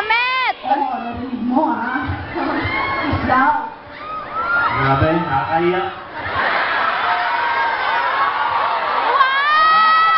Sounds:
cheering

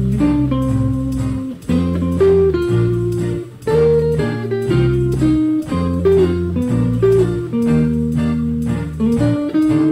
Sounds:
music

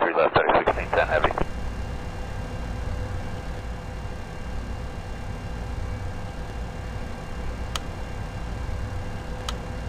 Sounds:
heavy engine (low frequency), speech

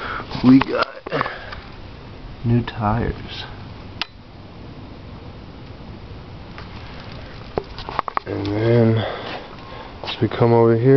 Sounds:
speech

